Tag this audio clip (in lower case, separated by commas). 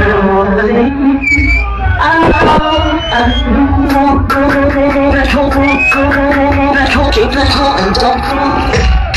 techno, music